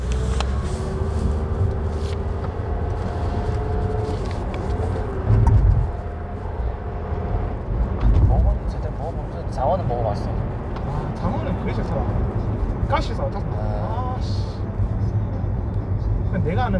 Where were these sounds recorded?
in a car